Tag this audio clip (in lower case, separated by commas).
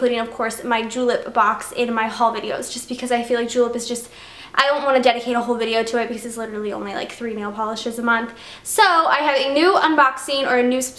speech